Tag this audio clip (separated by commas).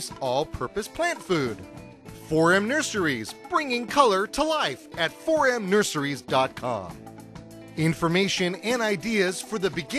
Music, Speech